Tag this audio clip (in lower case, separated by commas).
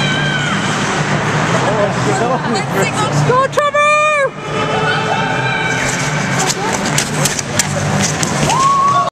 speech, run